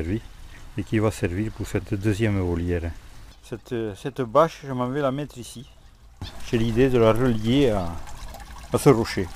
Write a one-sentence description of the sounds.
Water is trickling and a man is speaking